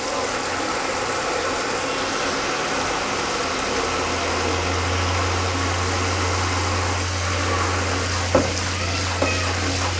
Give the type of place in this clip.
restroom